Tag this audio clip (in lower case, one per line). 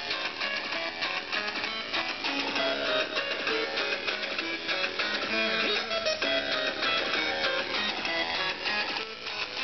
music